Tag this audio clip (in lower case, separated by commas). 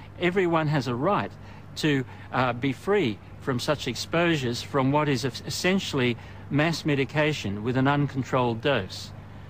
speech